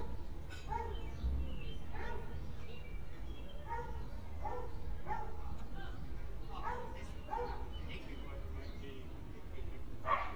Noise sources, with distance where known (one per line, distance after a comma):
person or small group talking, far
dog barking or whining, far